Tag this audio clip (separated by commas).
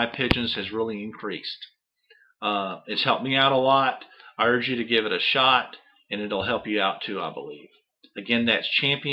Speech